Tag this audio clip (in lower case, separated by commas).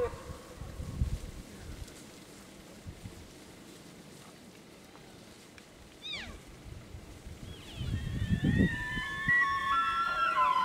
elk bugling